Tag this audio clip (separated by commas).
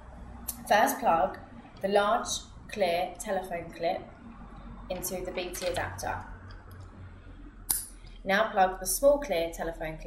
Speech